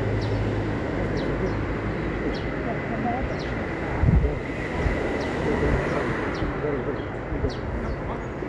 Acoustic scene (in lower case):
residential area